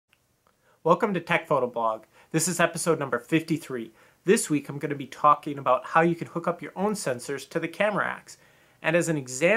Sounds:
speech

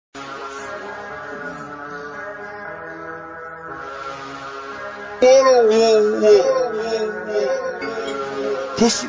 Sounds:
music

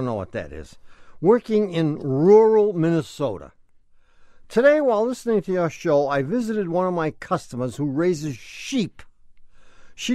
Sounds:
speech

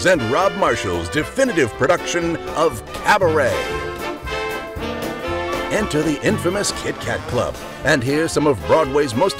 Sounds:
speech
music

